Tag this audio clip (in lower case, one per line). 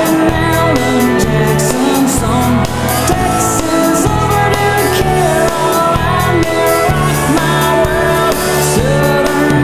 singing
music
song
independent music
pop music